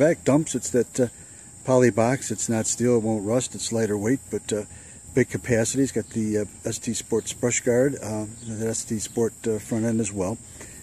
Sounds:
Speech

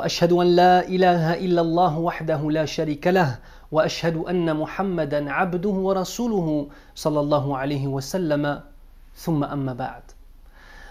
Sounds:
Speech

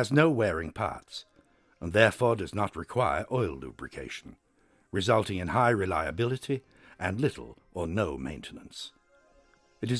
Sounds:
Speech

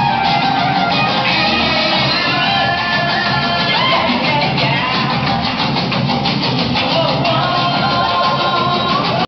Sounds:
Music, Musical instrument

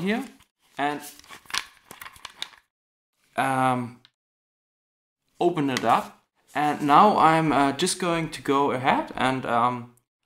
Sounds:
Speech

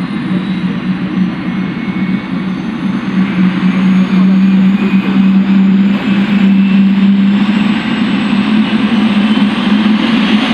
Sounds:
airplane flyby

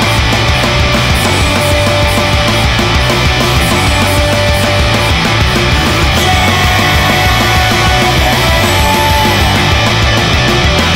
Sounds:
Music

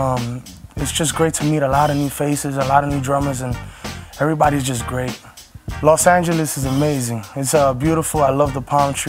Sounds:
Snare drum, Percussion, Drum kit, Bass drum, Rimshot, Drum

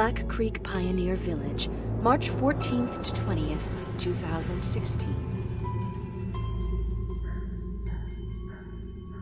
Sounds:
Music, Speech

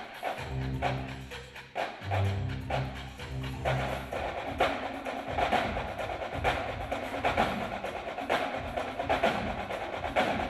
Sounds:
Percussion, Music

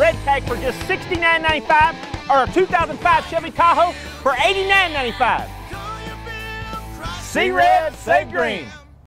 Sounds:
Speech, Music

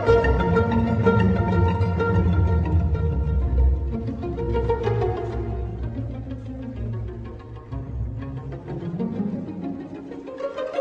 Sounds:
fiddle, Musical instrument, Music

